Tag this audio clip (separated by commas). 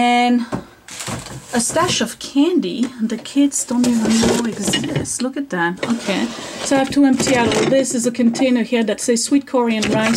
inside a small room, Speech